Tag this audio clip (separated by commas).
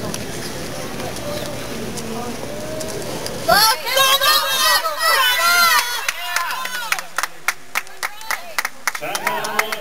Speech, Animal, Clip-clop